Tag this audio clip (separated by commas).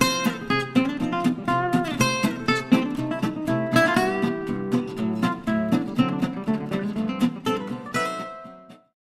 Music